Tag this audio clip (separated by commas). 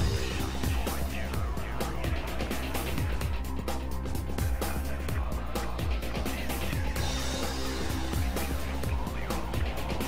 lighting firecrackers